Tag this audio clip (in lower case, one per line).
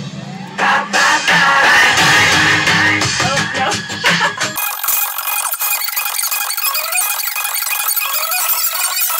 speech
inside a large room or hall
music